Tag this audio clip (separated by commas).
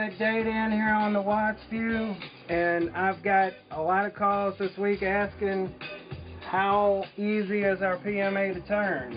Music, Speech